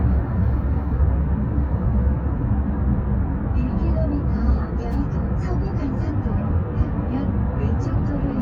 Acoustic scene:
car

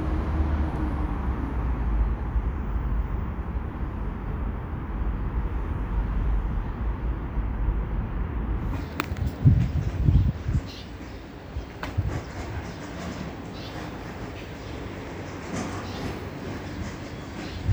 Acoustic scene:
residential area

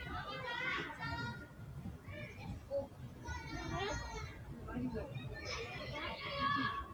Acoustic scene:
residential area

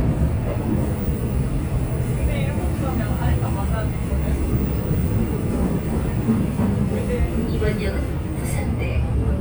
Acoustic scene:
subway train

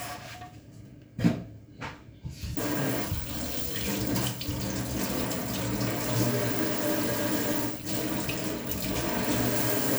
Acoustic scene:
kitchen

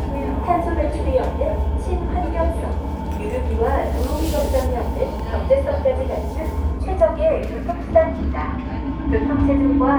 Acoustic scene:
subway train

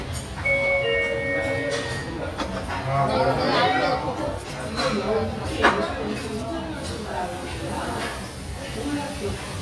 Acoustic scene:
restaurant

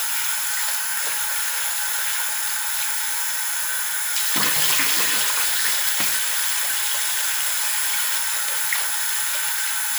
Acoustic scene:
restroom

